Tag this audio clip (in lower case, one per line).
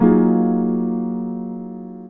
musical instrument
keyboard (musical)
music
piano